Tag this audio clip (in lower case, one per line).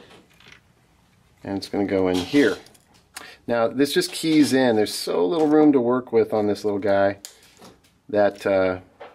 speech